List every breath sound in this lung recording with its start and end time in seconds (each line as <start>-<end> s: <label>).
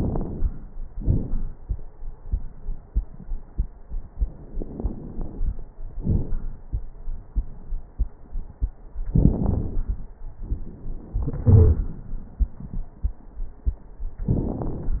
0.00-0.72 s: inhalation
0.00-0.72 s: crackles
0.95-1.55 s: exhalation
0.95-1.55 s: crackles
4.48-5.67 s: inhalation
4.48-5.67 s: crackles
5.98-6.64 s: exhalation
5.98-6.64 s: crackles
9.10-10.11 s: inhalation
9.10-10.11 s: crackles
11.14-12.00 s: exhalation
11.45-11.86 s: wheeze
14.29-15.00 s: inhalation
14.29-15.00 s: crackles